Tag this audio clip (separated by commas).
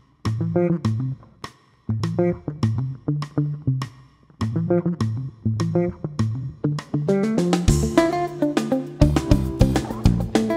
Guitar, Music, Plucked string instrument, Electric guitar, Musical instrument